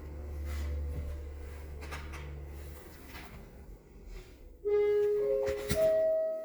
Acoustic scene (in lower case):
elevator